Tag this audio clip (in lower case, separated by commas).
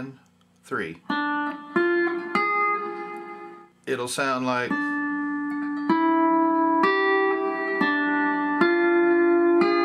plucked string instrument, music, speech, musical instrument, steel guitar, guitar